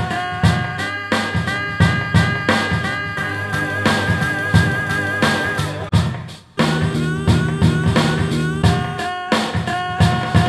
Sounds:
Music

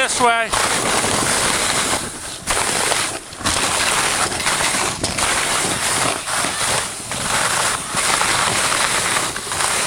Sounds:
Speech

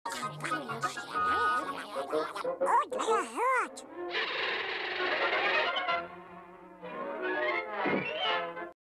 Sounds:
Music

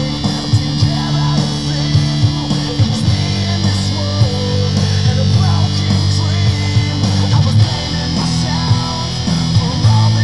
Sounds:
Music, Guitar, Musical instrument, Strum, Plucked string instrument

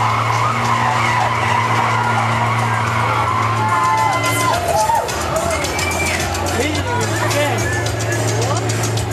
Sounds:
Vehicle, Car, Music, Speech

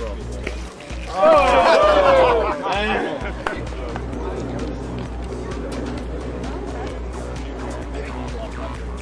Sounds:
Speech, Music

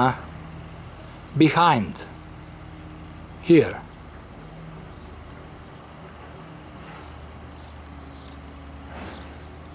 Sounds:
Speech

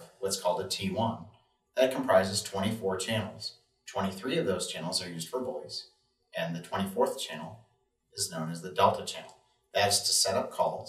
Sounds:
Speech

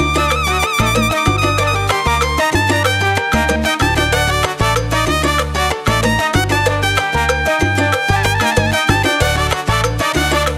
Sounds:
Salsa music

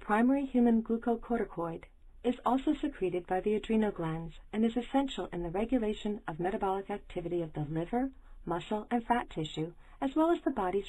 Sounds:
Speech

